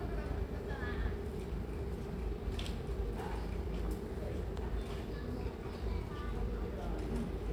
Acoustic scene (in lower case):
residential area